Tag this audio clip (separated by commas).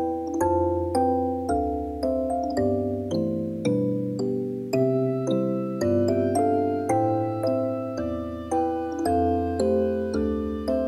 Music